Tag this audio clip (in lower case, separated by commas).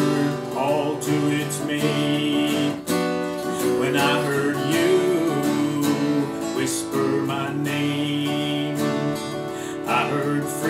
strum, music, guitar, acoustic guitar, musical instrument, plucked string instrument